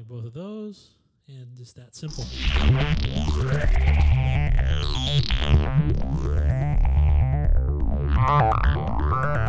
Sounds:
speech, musical instrument, synthesizer, music

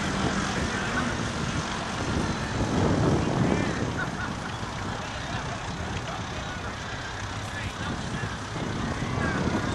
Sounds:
vehicle, speech

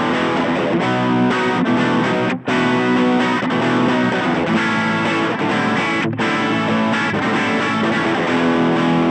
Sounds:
rock music, music, guitar, electric guitar, plucked string instrument, musical instrument

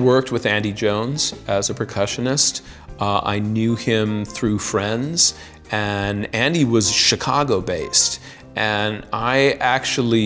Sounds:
music, speech

